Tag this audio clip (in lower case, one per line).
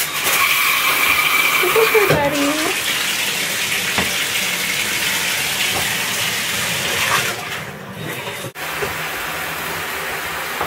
speech